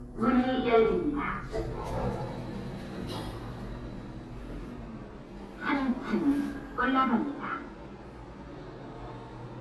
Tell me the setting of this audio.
elevator